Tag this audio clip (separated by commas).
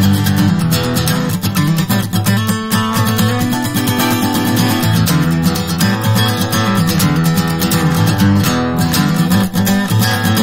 Music, Guitar, Acoustic guitar, playing acoustic guitar, Musical instrument, Plucked string instrument